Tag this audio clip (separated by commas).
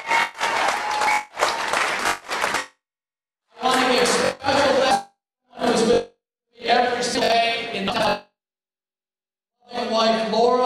Narration, Speech